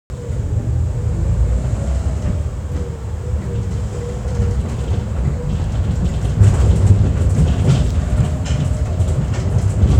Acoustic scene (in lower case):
bus